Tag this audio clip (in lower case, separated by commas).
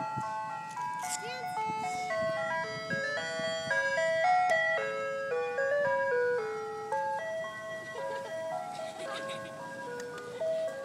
music, speech